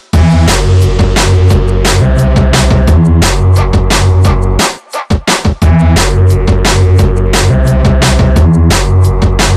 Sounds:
Electronic music, Music, Drum and bass

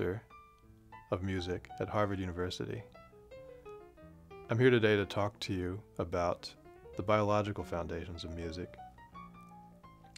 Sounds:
Music, Speech

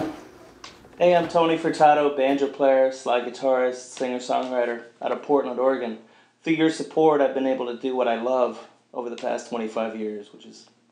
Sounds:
Speech

